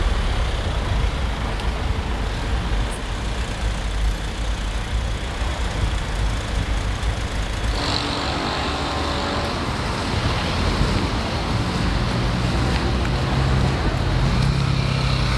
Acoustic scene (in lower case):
street